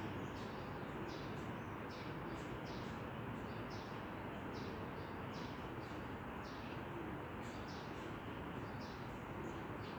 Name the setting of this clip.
residential area